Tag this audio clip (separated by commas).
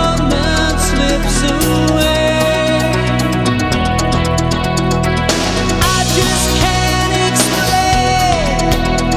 Music